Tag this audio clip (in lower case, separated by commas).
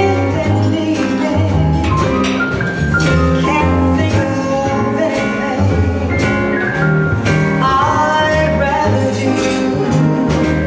female singing, music